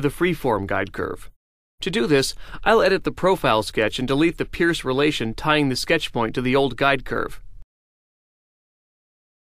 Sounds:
Speech

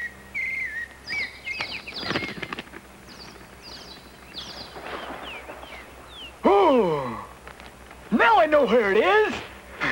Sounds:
Animal

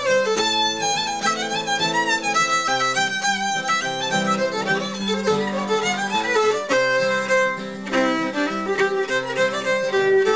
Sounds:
Musical instrument, fiddle, Music

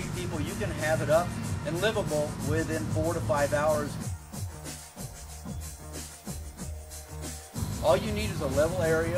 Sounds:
Music, Speech

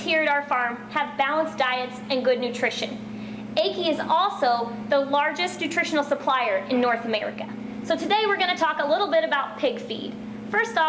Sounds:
Speech

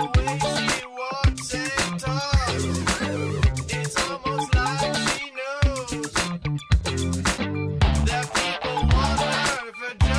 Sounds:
Funk, Music

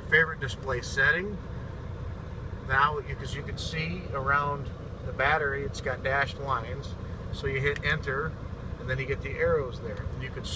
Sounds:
Vehicle, Speech

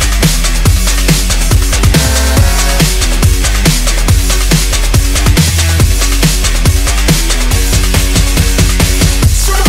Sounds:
Music, Drum and bass

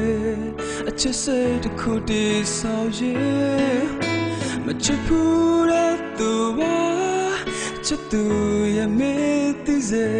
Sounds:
Music

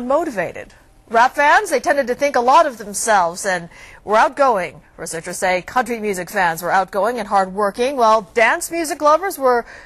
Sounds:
Speech

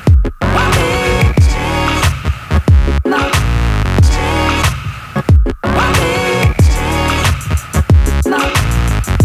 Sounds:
Music

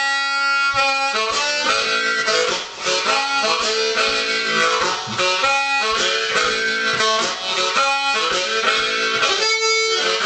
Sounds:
Music

